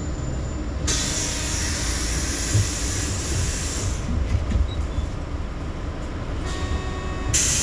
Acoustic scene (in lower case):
bus